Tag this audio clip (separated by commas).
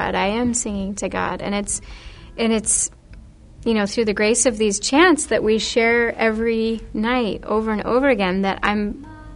Speech